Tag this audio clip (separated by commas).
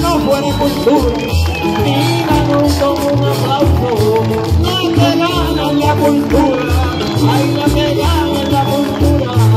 Singing, Music, Rattle (instrument)